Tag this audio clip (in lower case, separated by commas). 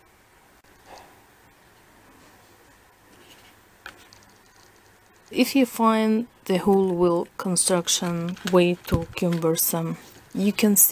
speech, inside a small room